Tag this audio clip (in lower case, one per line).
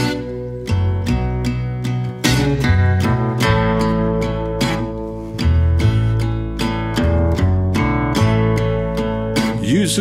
music